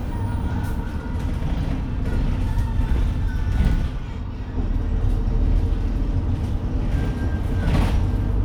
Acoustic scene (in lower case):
bus